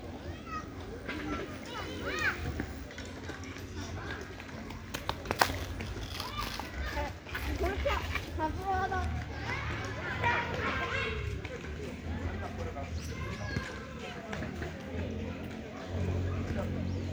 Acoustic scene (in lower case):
park